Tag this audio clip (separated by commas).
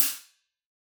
Percussion, Cymbal, Musical instrument, Hi-hat, Music